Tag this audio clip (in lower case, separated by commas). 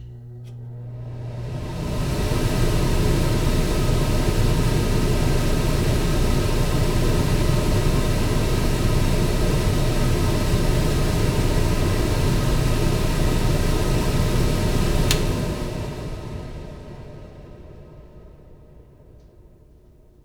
mechanical fan, mechanisms